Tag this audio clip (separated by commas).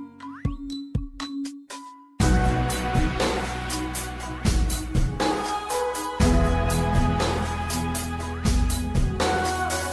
Music